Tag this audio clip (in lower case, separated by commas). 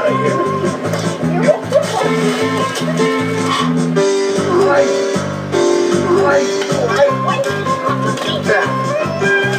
music, speech